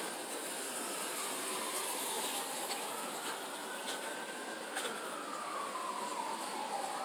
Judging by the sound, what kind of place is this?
residential area